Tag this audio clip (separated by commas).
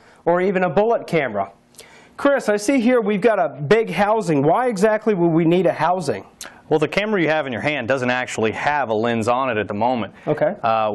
Speech